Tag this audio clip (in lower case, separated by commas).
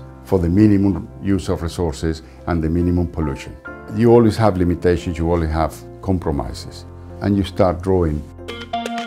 music, speech